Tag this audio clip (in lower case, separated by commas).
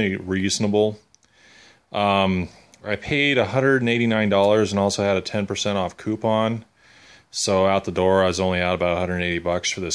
speech